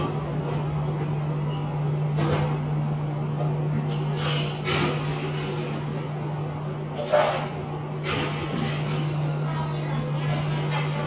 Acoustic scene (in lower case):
cafe